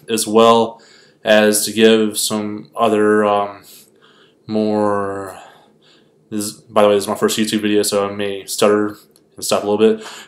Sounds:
speech

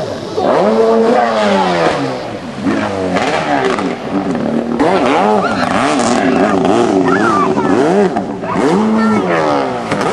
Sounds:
speech

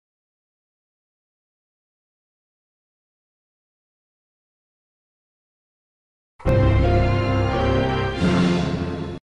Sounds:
music

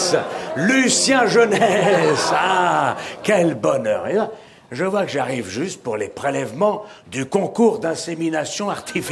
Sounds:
speech

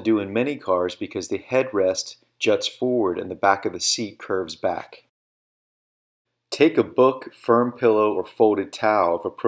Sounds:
speech

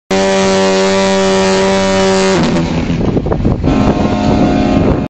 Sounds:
outside, urban or man-made
foghorn

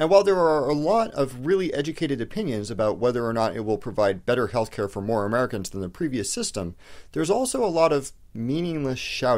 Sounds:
speech

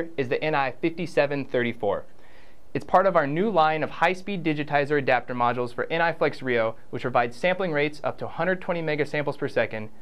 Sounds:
speech

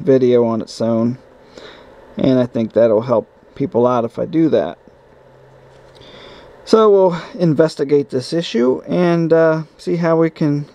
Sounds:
speech

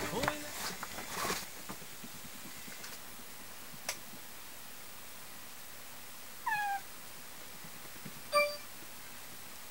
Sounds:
meow
cat meowing
cat

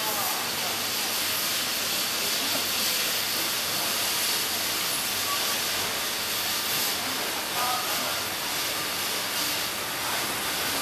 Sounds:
speech
inside a large room or hall

